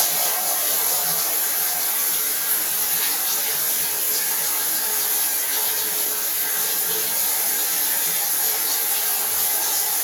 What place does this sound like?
restroom